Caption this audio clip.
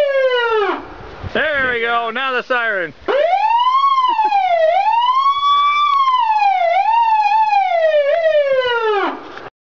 Siren blaring then a man speaks followed by more siren blaring